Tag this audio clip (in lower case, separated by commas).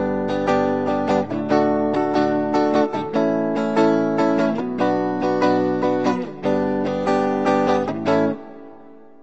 musical instrument, plucked string instrument, guitar, music, acoustic guitar